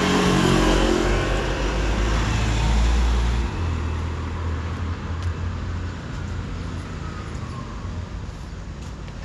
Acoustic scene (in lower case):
street